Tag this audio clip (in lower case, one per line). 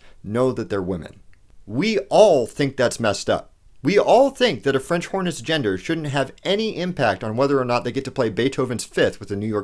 monologue
speech